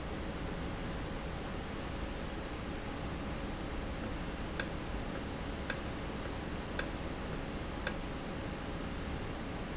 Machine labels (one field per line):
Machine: valve